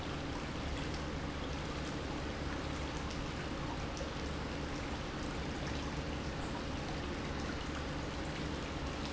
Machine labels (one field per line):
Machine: pump